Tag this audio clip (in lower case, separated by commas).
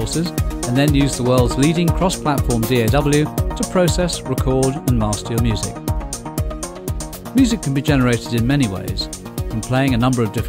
speech, music